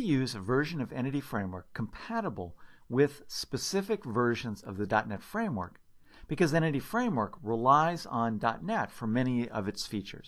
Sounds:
Speech, Narration

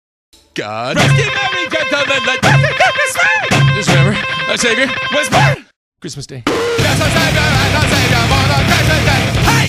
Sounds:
Speech, Music

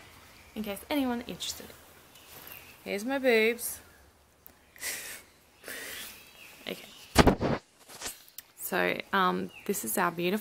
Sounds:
Speech

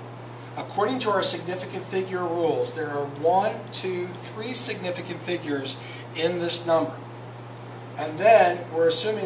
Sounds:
Speech

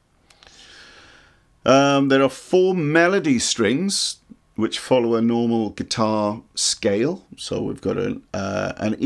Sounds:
Speech

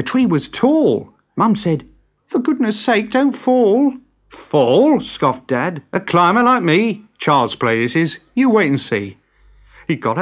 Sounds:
Speech

